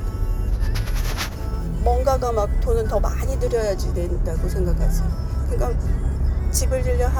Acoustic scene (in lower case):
car